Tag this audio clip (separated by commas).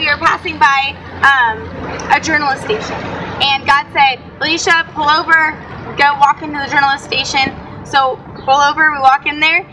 Speech, Music